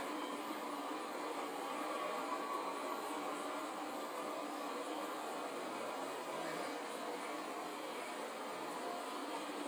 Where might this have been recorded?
on a subway train